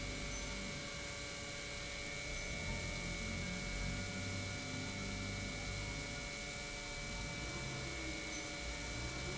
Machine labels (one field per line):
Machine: pump